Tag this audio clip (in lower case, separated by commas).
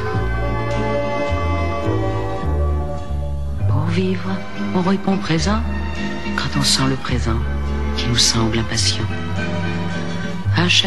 music, speech